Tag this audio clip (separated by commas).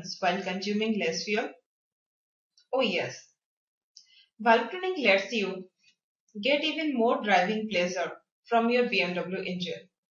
Speech